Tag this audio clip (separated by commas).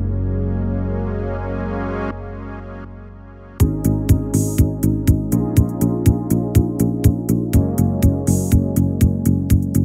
Music